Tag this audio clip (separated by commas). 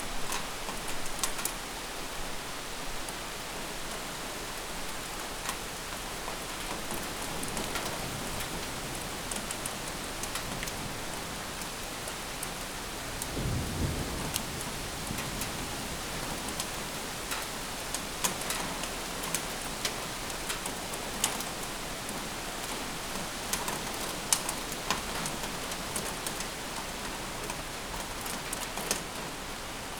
Rain, Water